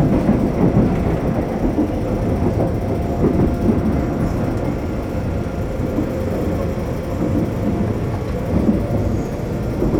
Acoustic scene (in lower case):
subway train